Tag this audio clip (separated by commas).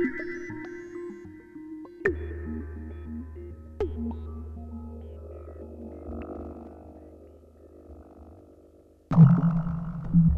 Music